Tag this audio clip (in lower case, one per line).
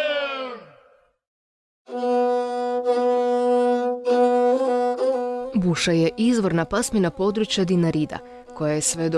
speech
music